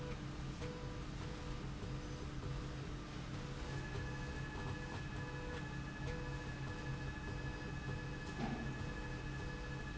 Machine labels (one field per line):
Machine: slide rail